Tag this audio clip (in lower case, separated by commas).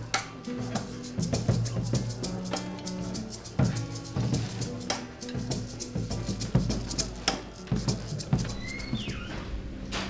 music, speech